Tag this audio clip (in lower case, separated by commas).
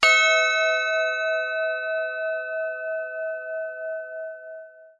percussion, musical instrument, music